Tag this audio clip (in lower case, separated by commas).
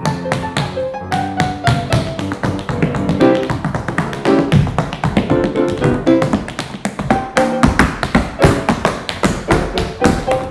tap dancing